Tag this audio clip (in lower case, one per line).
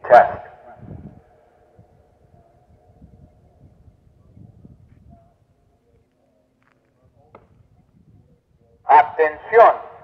speech